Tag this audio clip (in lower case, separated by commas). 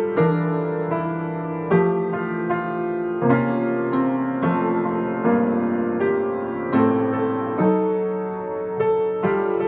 music, tender music